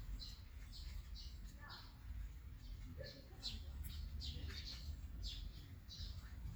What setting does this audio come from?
park